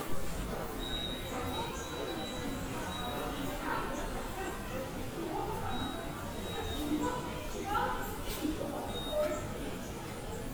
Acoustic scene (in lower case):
subway station